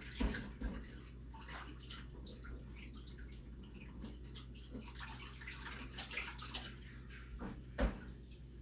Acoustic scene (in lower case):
kitchen